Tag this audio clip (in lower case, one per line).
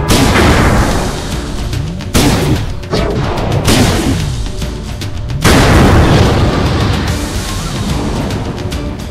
boom
music